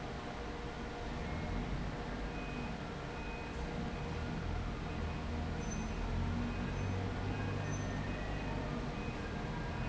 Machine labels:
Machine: fan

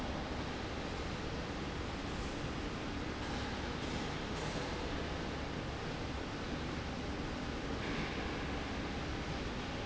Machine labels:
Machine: slide rail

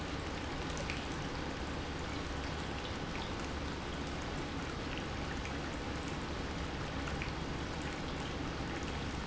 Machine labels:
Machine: pump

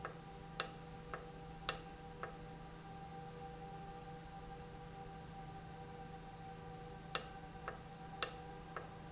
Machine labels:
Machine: valve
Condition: normal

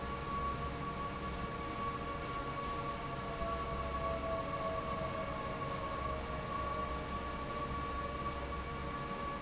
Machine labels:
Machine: fan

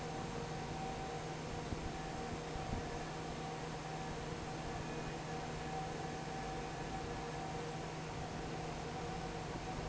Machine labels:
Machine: fan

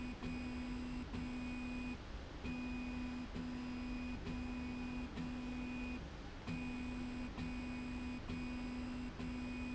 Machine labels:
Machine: slide rail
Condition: normal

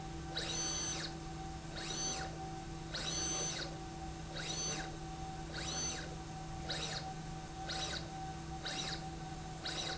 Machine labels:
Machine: slide rail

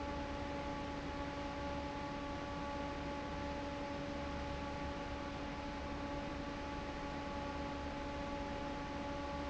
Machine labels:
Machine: fan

